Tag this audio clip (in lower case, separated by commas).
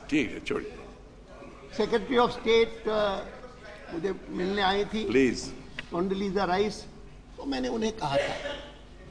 monologue, speech, male speech, conversation